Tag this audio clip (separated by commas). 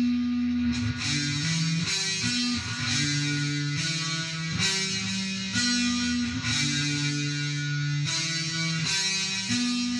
Acoustic guitar, Music, Plucked string instrument, Strum, Musical instrument